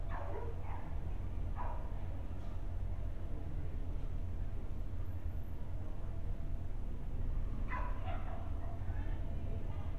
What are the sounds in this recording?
dog barking or whining